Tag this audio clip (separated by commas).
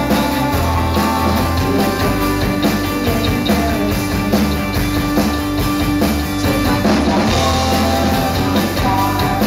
Music